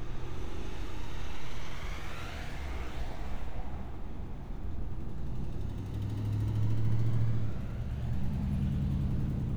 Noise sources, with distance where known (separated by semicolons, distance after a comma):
medium-sounding engine